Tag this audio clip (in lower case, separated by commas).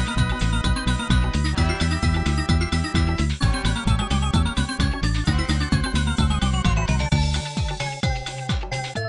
music, video game music